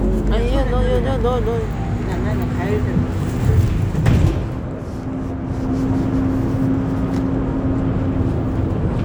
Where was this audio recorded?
on a bus